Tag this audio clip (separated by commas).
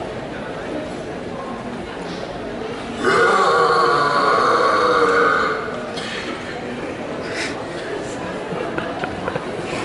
people burping